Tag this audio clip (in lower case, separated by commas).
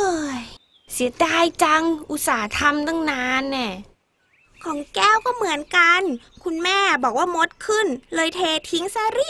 speech, kid speaking